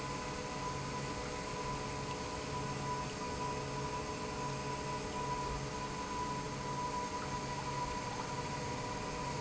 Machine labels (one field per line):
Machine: pump